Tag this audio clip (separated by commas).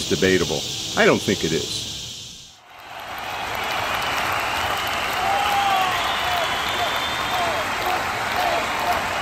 Speech